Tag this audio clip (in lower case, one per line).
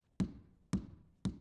tap